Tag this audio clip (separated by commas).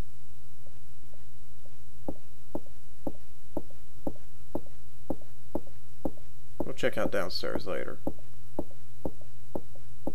Speech